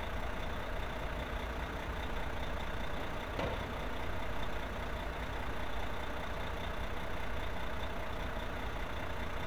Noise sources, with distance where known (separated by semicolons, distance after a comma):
large-sounding engine, near